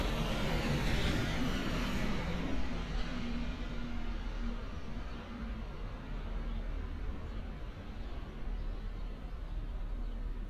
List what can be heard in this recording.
engine of unclear size